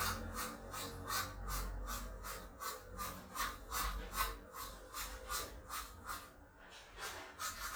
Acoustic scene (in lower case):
restroom